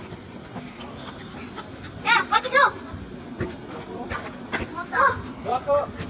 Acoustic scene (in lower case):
park